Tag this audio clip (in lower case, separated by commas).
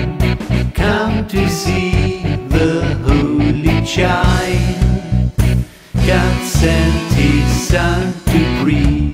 music, singing, happy music